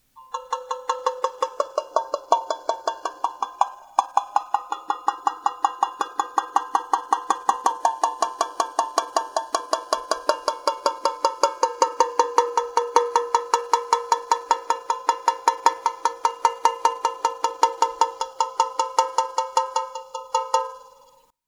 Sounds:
Tap

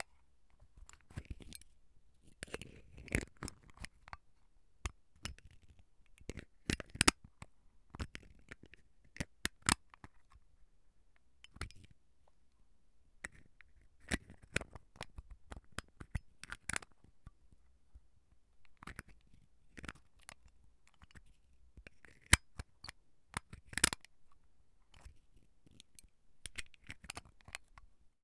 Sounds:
Mechanisms, Camera

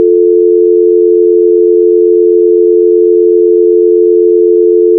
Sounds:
Telephone, Alarm

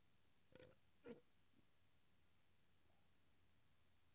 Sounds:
eructation

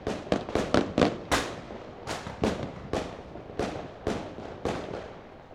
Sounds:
Explosion, Fireworks

